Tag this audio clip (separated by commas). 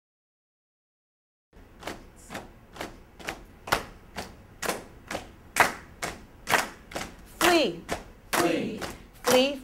Speech